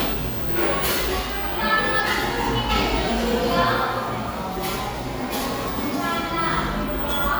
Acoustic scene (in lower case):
cafe